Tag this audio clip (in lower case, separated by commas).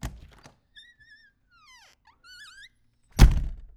wood, door, squeak, slam, home sounds